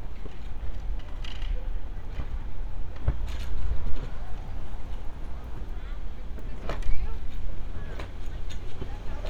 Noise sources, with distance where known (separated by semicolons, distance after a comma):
person or small group talking, far